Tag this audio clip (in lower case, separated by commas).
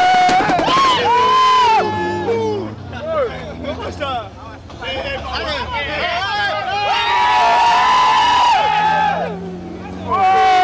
speech